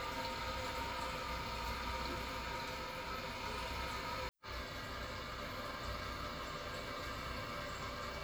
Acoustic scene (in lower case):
restroom